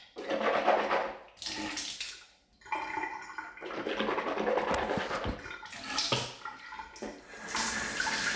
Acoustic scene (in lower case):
restroom